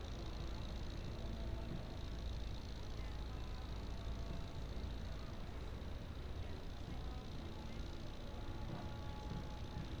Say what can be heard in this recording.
unidentified impact machinery